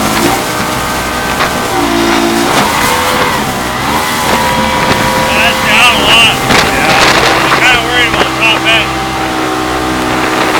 An engine with wind blowing hard and men speaking